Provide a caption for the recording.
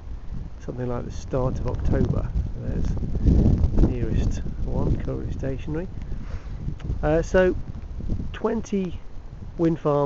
Man speaking wind blowing